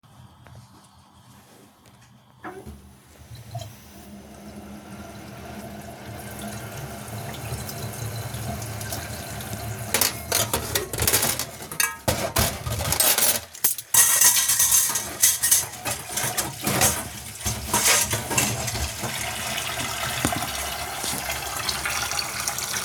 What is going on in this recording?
I put my phone on the table, turn on the running water, then move the spoon around the sink for noise